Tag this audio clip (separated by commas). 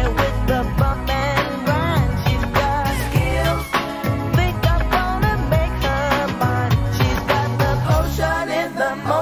Music, Reggae